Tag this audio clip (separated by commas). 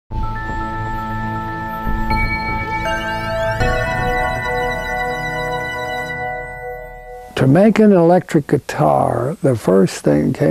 Music, Musical instrument, Speech